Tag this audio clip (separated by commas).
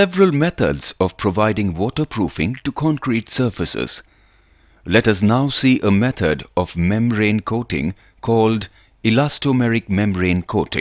Speech